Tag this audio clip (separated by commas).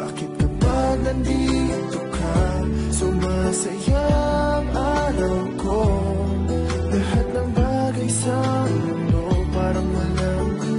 Music, Background music